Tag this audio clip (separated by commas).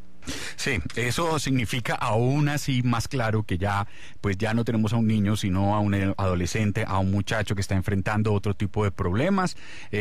Speech